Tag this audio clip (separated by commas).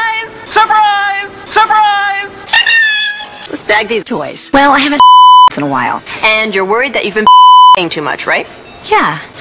Speech